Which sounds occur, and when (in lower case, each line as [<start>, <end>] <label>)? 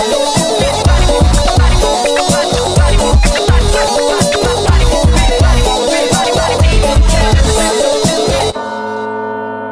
[0.00, 9.71] music